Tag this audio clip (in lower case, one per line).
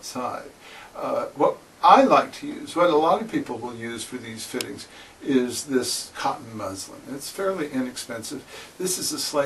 speech